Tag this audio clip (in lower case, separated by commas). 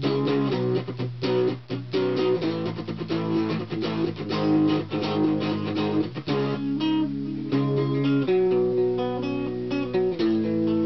musical instrument, music, plucked string instrument, guitar